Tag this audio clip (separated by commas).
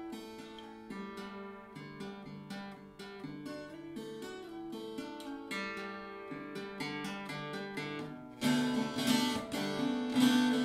Music, Guitar, Tapping (guitar technique), Acoustic guitar